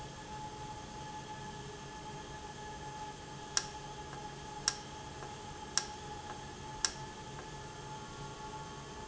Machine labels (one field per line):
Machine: valve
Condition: normal